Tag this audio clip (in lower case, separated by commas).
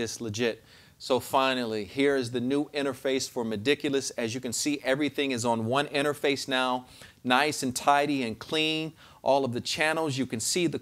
speech